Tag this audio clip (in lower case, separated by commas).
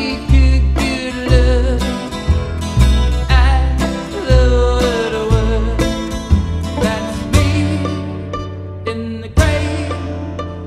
music, guitar, plucked string instrument, musical instrument, acoustic guitar